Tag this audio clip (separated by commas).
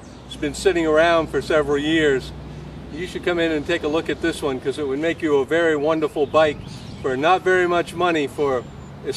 Speech